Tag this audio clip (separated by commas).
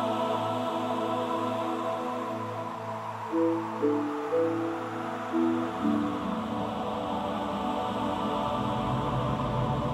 Music